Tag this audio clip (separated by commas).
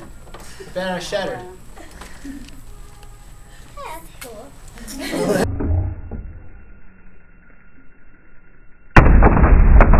Speech